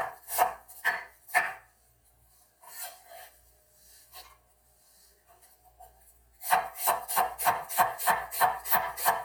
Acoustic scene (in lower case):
kitchen